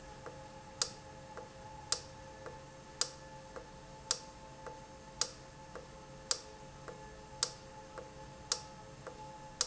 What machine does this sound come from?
valve